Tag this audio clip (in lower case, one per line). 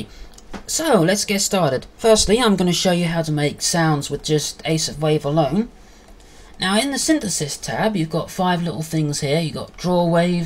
speech